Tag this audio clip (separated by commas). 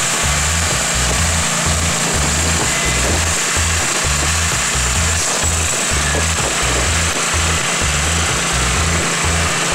Idling, Tools, Music, outside, urban or man-made